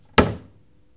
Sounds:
home sounds, Cupboard open or close

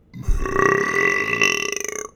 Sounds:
Burping

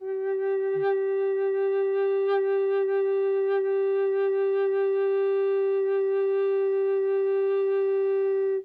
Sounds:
Musical instrument, Wind instrument, Music

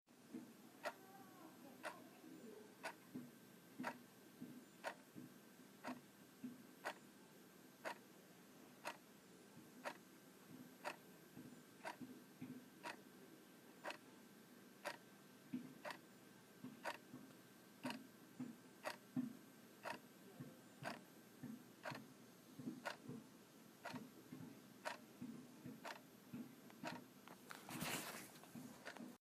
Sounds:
Tick-tock, Clock, Mechanisms

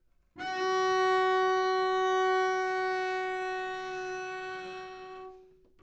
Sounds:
Musical instrument, Bowed string instrument, Music

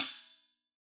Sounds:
Hi-hat, Cymbal, Music, Percussion, Musical instrument

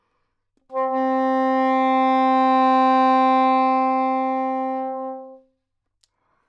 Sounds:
Music, Wind instrument, Musical instrument

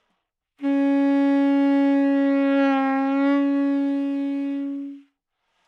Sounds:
Music, Musical instrument, Wind instrument

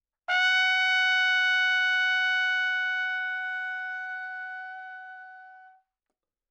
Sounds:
Trumpet, Brass instrument, Musical instrument, Music

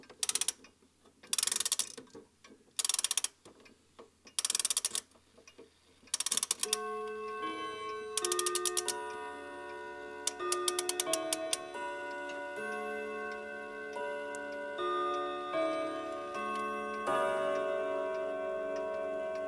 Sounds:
Mechanisms, Clock, Tick-tock

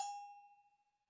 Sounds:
Bell

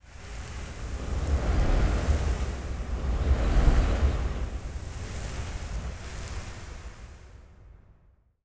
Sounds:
Fire

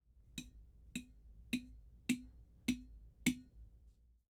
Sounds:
Tap

